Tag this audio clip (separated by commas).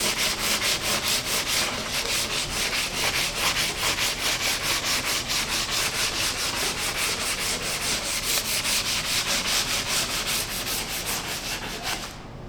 Tools